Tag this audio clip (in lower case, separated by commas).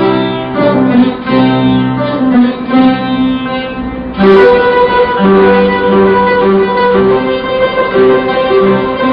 plucked string instrument, musical instrument, music